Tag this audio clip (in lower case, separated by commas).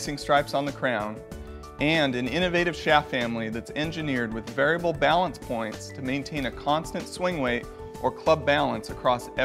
speech, music